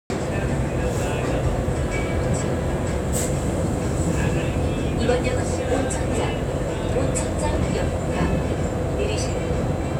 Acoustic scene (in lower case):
subway train